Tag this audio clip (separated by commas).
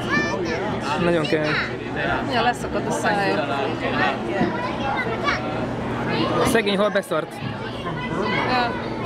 Speech